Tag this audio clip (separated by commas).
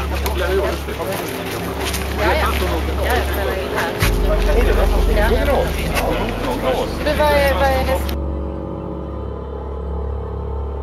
Scary music, outside, urban or man-made, Speech